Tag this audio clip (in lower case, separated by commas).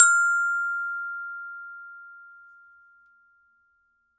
percussion, music, glockenspiel, mallet percussion, musical instrument